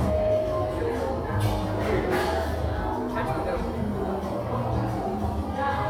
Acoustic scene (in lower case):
crowded indoor space